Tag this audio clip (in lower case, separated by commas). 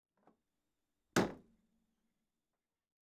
door, home sounds, slam